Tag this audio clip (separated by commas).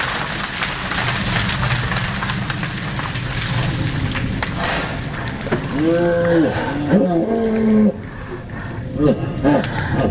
Raindrop